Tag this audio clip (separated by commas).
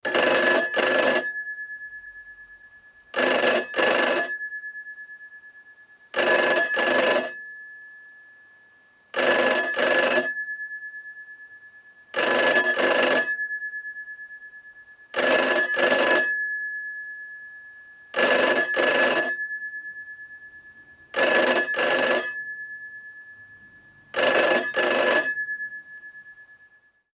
Telephone, Alarm